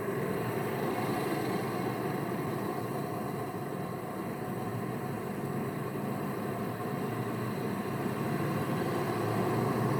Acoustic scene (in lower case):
street